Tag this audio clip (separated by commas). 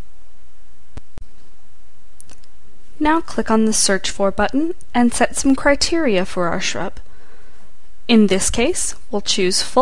Speech